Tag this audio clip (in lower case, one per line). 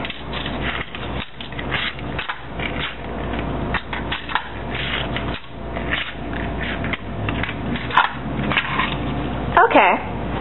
inside a small room
speech